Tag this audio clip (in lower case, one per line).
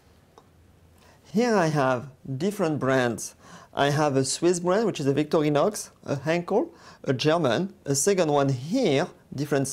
speech